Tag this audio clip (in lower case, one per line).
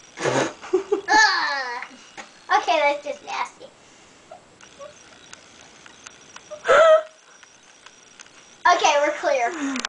speech